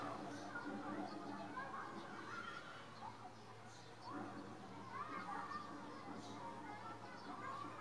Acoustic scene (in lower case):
residential area